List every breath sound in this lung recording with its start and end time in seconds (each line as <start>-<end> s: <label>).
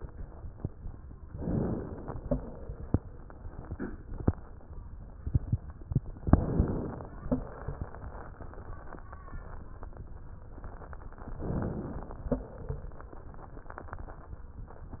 1.23-2.20 s: inhalation
1.23-2.20 s: crackles
6.24-7.21 s: inhalation
6.24-7.21 s: crackles
11.38-12.35 s: inhalation
11.38-12.35 s: crackles